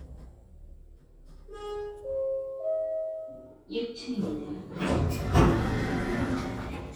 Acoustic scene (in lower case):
elevator